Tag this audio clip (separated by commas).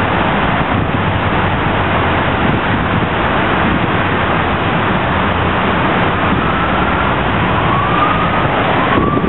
Vehicle, Motor vehicle (road), Police car (siren)